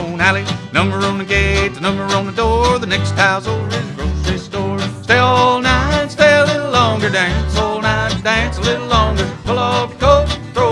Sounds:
Music

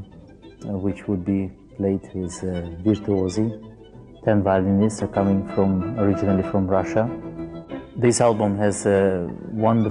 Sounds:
Music, Speech

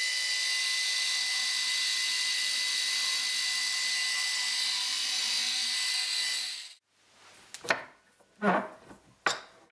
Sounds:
Tools

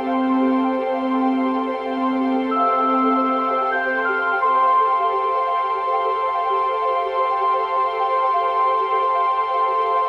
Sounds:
Music

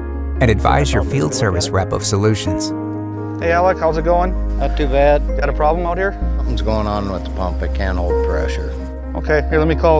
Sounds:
Music, Speech

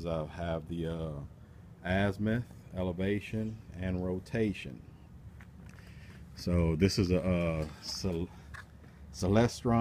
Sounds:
Speech

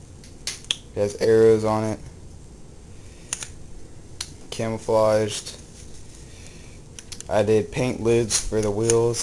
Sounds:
Speech

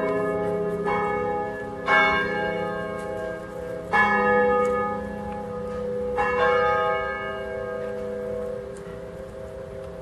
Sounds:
Music, Church bell, church bell ringing

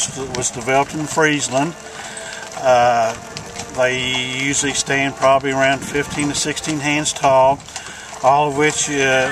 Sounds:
Animal, Clip-clop, Music, Speech

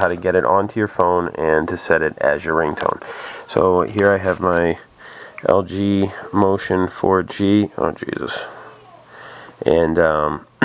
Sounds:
Speech

